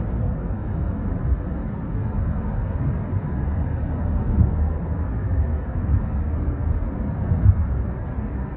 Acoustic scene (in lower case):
car